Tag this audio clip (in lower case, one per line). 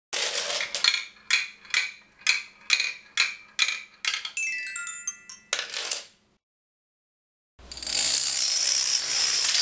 music